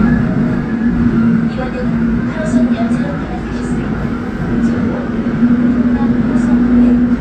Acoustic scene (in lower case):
subway train